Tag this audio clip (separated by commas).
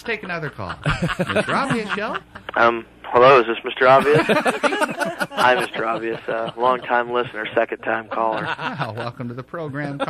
Speech